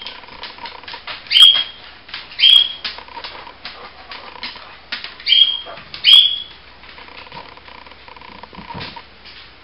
A bird is whistling, a creaking sound occurs, a dog pants, and a tapping sound is present